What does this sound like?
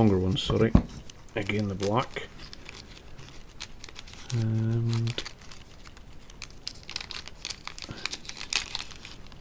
In a quiet environment, an adult male speaks, a quiet thump occurs, and plastic is crumpled and crinkled